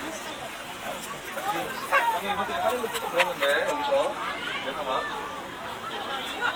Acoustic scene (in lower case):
park